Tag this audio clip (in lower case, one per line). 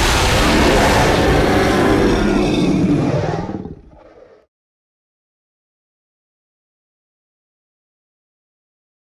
sound effect